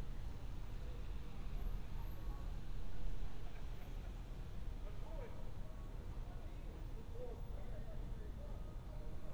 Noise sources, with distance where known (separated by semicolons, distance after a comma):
person or small group talking, far; person or small group shouting, far